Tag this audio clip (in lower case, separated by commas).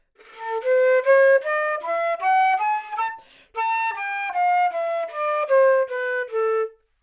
music, musical instrument, wind instrument